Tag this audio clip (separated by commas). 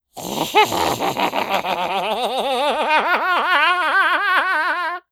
Human voice, Laughter